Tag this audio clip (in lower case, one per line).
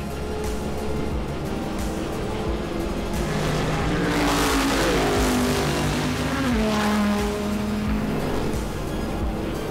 music